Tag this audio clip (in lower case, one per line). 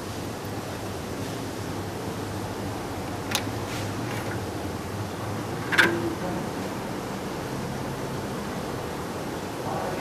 tools
speech